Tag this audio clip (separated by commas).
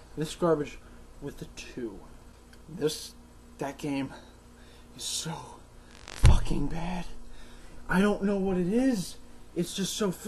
Speech